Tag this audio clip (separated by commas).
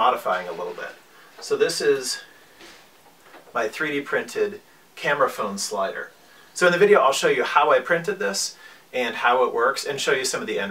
Speech